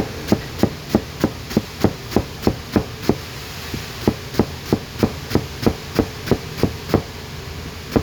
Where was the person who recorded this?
in a kitchen